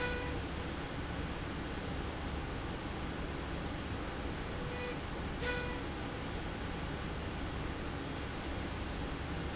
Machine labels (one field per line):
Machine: slide rail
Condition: normal